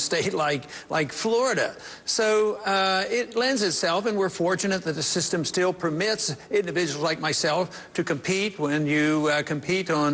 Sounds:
narration, male speech, speech

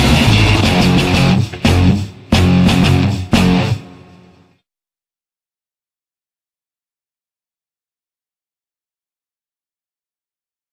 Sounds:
musical instrument, music, guitar

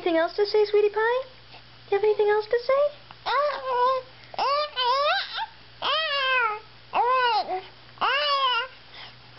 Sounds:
people babbling

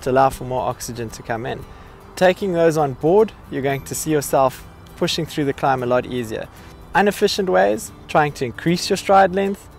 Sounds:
music, speech

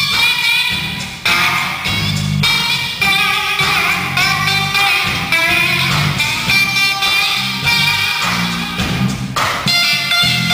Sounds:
musical instrument, music, bass guitar, plucked string instrument, strum, guitar

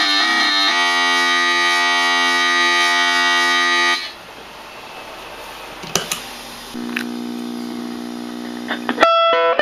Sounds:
effects unit, music

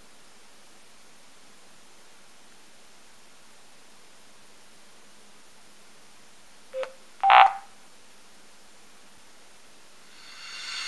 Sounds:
inside a small room

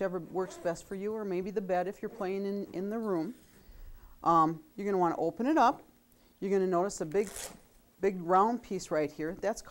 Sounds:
speech

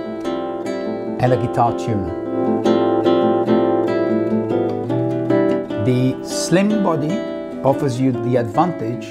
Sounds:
classical music, acoustic guitar, music, speech, musical instrument, guitar, strum, plucked string instrument

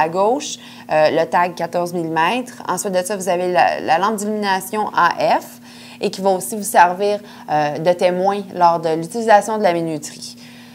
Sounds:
speech

